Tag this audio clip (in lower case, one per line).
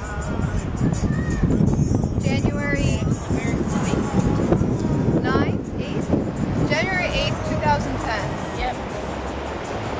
speech
music